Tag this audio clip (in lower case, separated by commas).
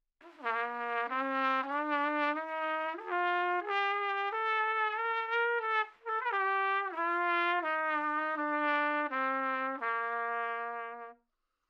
music, musical instrument, brass instrument, trumpet